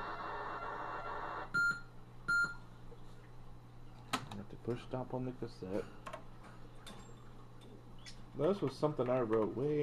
Beeping sound and typing while male speaks